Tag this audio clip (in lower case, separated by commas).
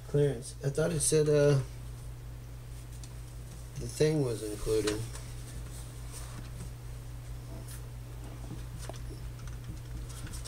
speech